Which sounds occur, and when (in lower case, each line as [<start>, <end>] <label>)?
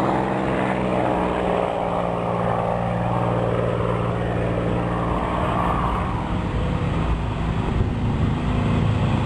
[0.00, 9.25] airplane
[0.00, 9.25] wind